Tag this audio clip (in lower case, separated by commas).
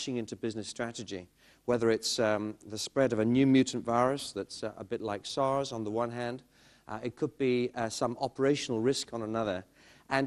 speech